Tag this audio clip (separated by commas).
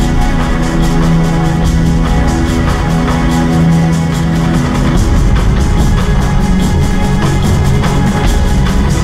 Music